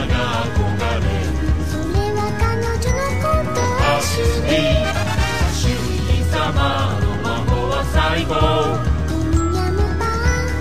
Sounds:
music

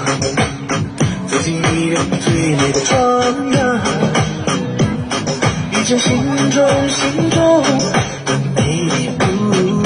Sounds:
people shuffling

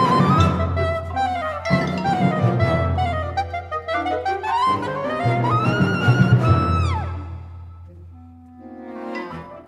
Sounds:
music

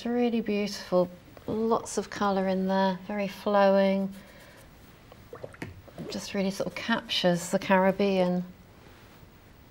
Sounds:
water

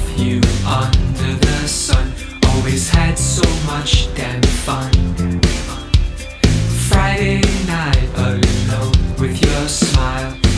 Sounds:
music
pop music

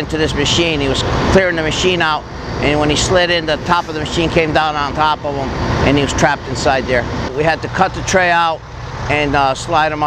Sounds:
speech

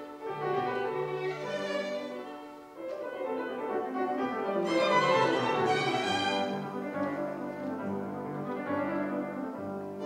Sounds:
music
musical instrument
violin

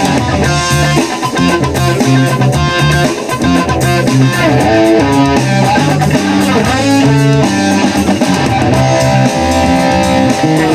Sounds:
electric guitar
strum
guitar
musical instrument
music

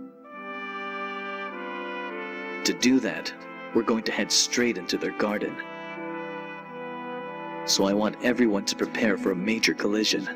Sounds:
speech
music

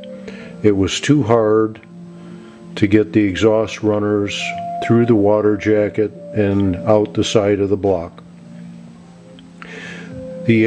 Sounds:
speech
music

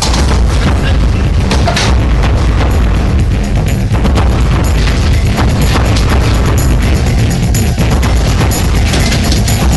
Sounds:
speech
music
boom

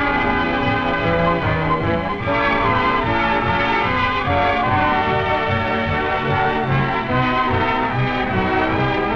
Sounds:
music

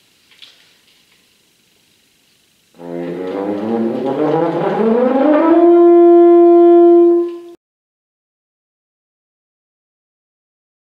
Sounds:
playing french horn

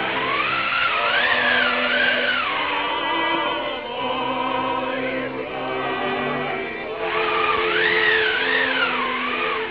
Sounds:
music

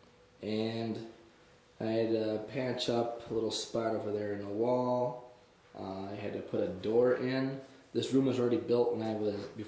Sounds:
speech

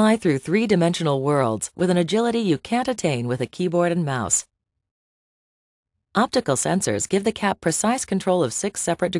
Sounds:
speech

